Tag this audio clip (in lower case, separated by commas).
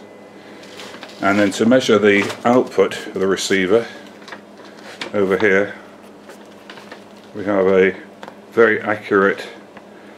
speech